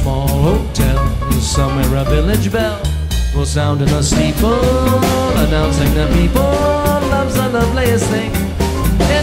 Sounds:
independent music
singing
music
musical instrument
guitar

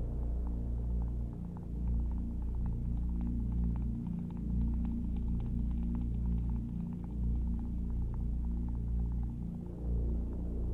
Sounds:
music
electronic music

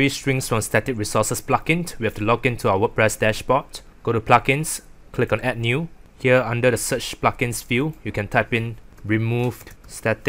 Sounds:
speech

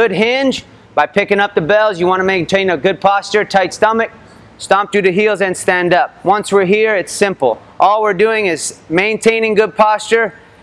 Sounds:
speech

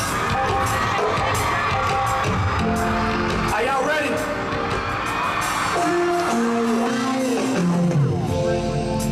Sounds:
music
speech

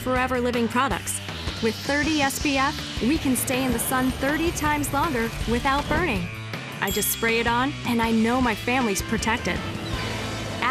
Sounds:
music
speech

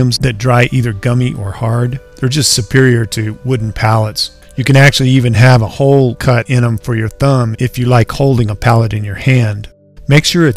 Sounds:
music
speech

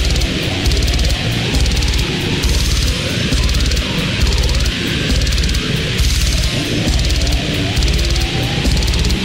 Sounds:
music

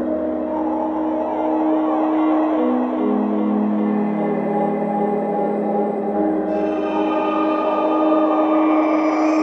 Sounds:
music

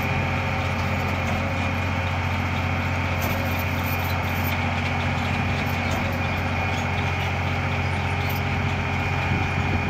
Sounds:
vehicle

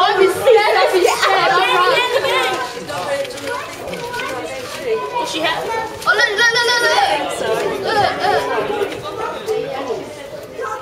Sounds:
speech

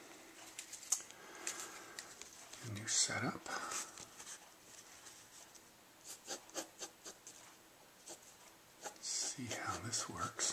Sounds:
speech

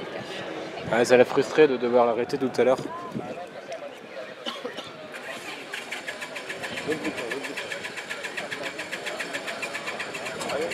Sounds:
speech

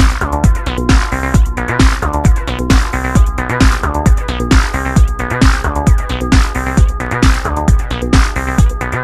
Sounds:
music
sampler

